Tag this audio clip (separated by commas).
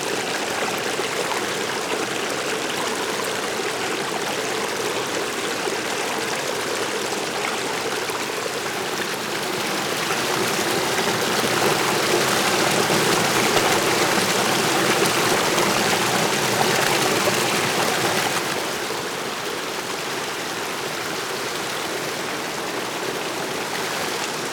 Water, Stream